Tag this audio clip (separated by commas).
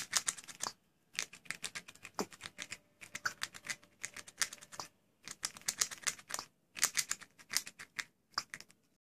Patter